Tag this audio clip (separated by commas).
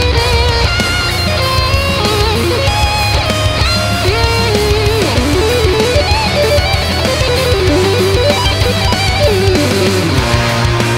Musical instrument, Plucked string instrument, Guitar, Music